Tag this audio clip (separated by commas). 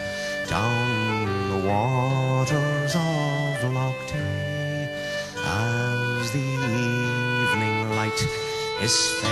Music